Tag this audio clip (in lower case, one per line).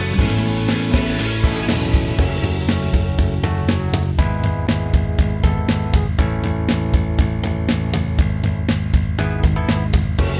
music